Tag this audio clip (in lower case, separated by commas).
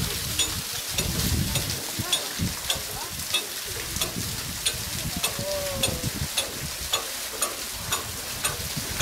speech, water